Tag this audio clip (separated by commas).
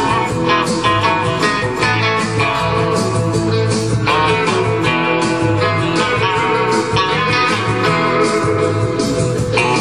Electric guitar, Musical instrument, Music, Plucked string instrument, Guitar